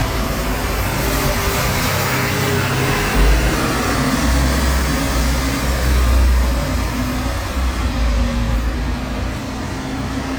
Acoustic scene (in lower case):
street